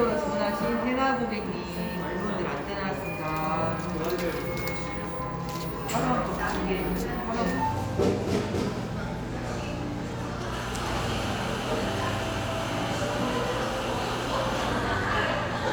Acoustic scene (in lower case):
cafe